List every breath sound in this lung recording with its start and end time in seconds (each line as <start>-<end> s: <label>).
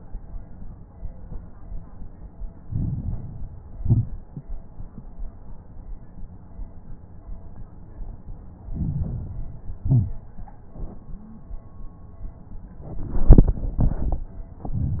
2.62-3.78 s: inhalation
2.62-3.78 s: crackles
3.78-4.35 s: exhalation
3.78-4.35 s: crackles
8.64-9.80 s: inhalation
8.64-9.80 s: crackles
9.84-10.41 s: exhalation
9.84-10.41 s: crackles
14.63-15.00 s: inhalation
14.63-15.00 s: crackles